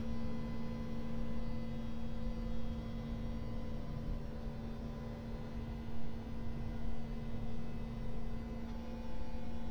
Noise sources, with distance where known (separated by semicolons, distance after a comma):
unidentified impact machinery, far